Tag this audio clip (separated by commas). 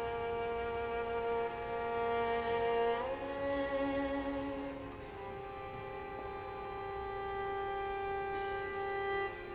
Music, Musical instrument, fiddle